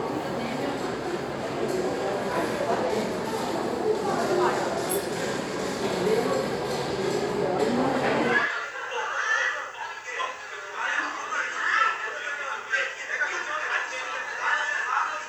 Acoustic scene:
crowded indoor space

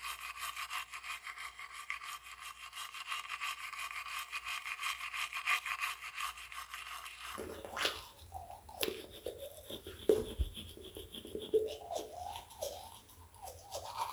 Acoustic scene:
restroom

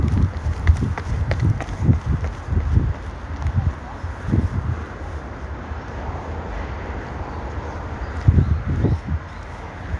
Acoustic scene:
park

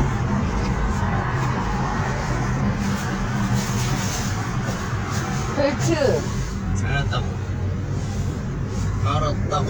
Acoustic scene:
car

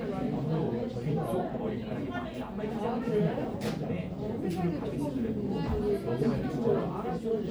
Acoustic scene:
crowded indoor space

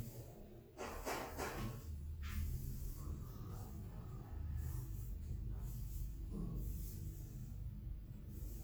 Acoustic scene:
elevator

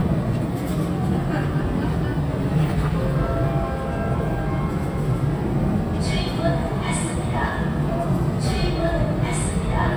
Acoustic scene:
subway train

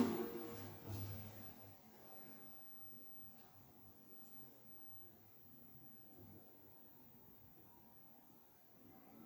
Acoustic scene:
elevator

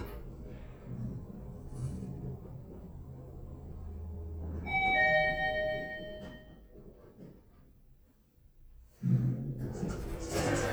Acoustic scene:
elevator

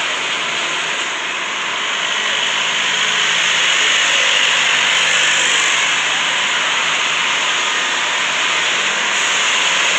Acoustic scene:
street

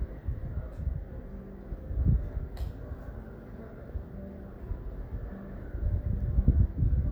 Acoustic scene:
residential area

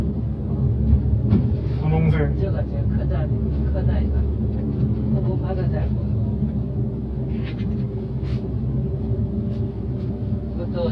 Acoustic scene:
car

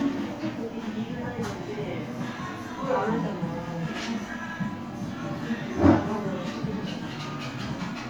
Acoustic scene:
crowded indoor space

